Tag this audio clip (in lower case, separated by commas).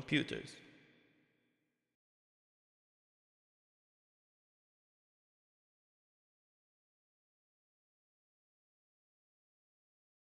speech